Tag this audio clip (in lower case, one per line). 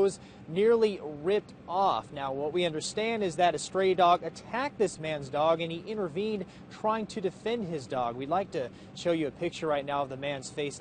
speech